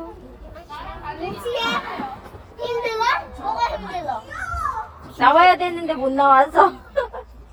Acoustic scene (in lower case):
park